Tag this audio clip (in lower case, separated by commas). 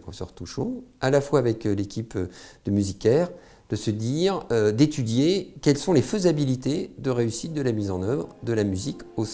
speech, music